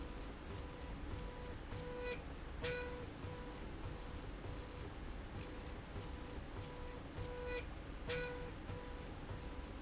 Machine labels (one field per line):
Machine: slide rail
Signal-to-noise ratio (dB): 6 dB